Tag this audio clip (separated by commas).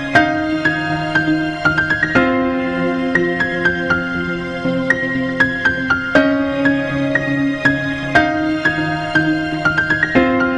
fiddle, Music, Musical instrument